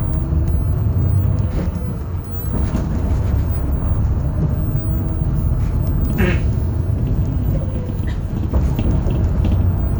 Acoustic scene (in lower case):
bus